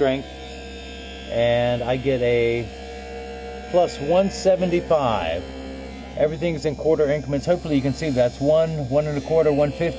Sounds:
mains hum
hum

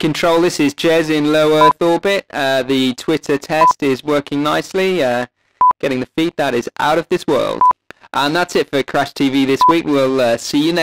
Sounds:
speech

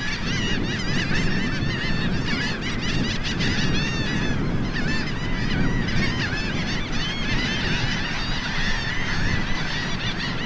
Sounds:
outside, rural or natural
goose
bird

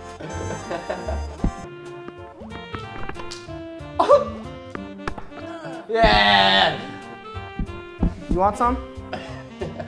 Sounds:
speech
music

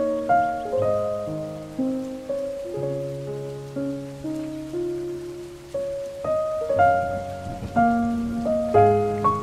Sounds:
raining

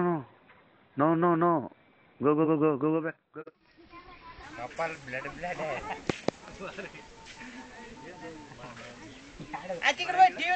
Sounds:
speech

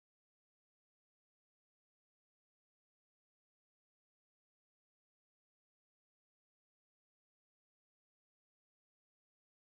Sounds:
planing timber

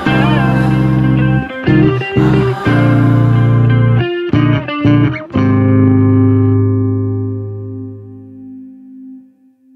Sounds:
playing bass guitar

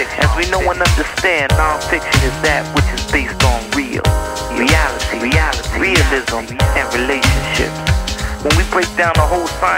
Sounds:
music

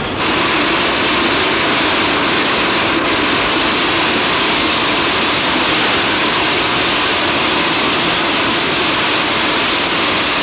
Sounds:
rail transport
train

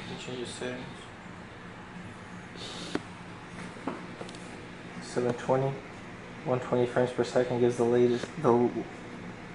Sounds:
speech

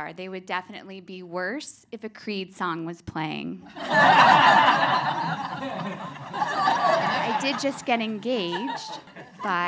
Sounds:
speech
laughter

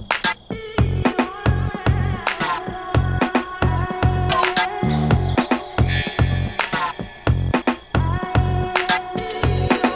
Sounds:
music

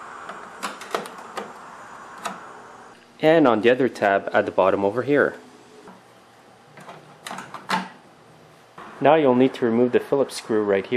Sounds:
inside a large room or hall
speech

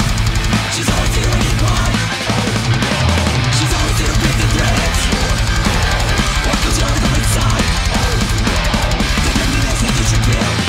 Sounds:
music

